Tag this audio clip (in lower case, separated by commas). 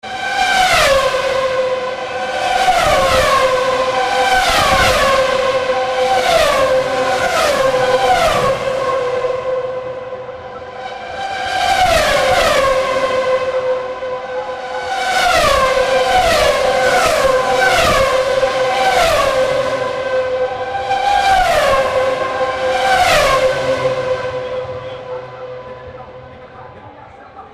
car, auto racing, vehicle, motor vehicle (road)